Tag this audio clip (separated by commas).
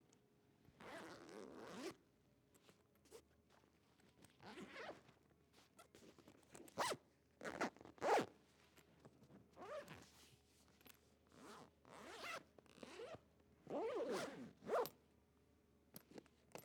Domestic sounds, Zipper (clothing)